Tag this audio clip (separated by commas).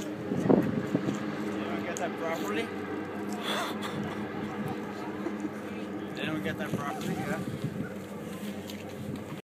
Speech